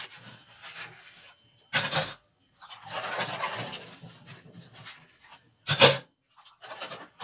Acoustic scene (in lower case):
kitchen